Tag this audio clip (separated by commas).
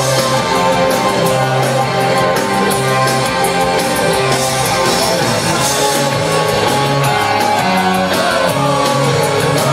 Music